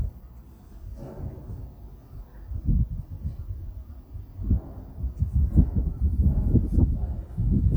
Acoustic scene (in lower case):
residential area